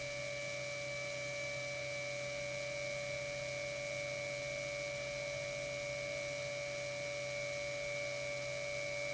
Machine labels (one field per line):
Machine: pump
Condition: normal